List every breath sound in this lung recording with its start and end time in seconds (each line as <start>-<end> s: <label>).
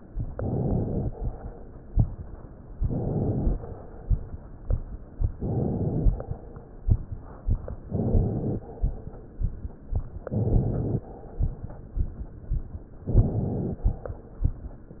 0.25-1.08 s: inhalation
2.73-3.59 s: inhalation
5.35-6.21 s: inhalation
7.87-8.67 s: inhalation
10.30-11.08 s: inhalation
13.09-13.89 s: inhalation